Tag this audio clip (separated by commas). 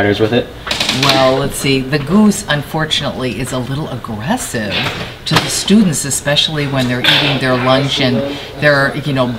Speech